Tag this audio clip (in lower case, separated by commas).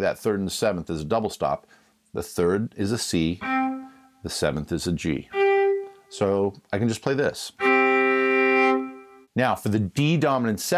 speech, fiddle, musical instrument, music